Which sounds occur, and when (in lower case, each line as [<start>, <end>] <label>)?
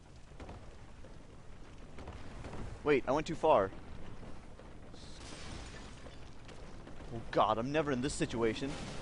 [0.00, 9.01] video game sound
[0.40, 0.74] footsteps
[0.96, 1.18] footsteps
[1.65, 2.12] footsteps
[2.37, 2.72] footsteps
[2.84, 3.70] male speech
[3.84, 4.22] footsteps
[4.55, 4.98] footsteps
[5.11, 6.24] shatter
[6.16, 6.33] footsteps
[6.46, 6.59] footsteps
[6.82, 7.06] footsteps
[7.31, 8.80] male speech